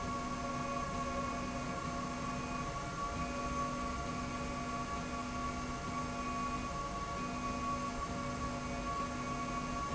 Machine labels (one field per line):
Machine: slide rail